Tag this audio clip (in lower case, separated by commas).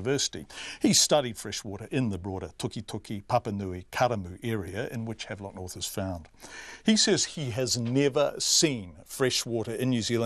speech